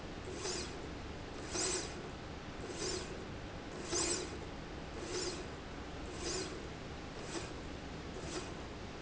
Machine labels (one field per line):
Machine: slide rail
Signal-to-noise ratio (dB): 0 dB